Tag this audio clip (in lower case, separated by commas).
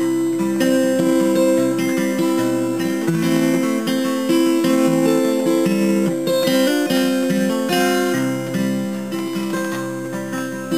music, guitar, acoustic guitar, plucked string instrument, musical instrument